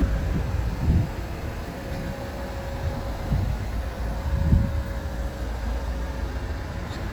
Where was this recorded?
on a street